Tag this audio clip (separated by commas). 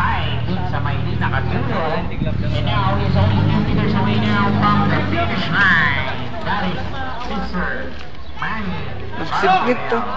Speech